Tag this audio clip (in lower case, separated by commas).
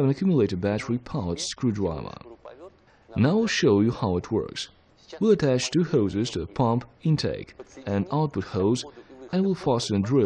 speech